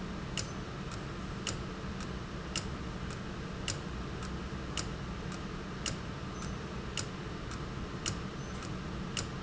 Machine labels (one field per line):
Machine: valve